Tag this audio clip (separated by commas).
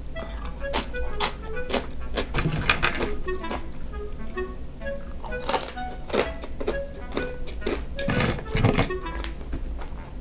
people eating noodle